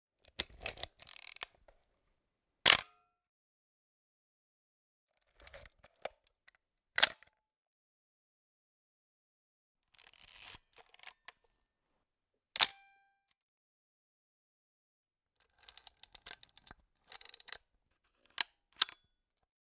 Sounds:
Camera, Mechanisms

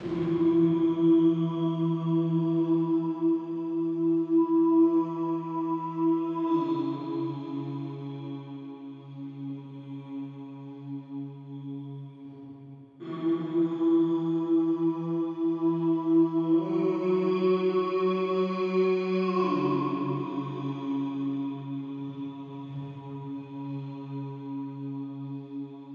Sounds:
Singing, Human voice

